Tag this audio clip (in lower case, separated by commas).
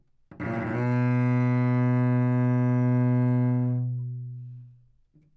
musical instrument, music, bowed string instrument